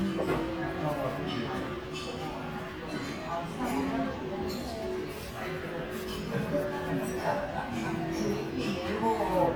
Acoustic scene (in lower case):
crowded indoor space